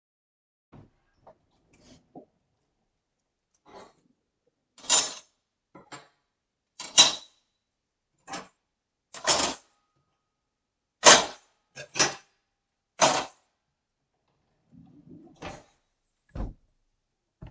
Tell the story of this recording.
I opened the drawer to put in some cutlery.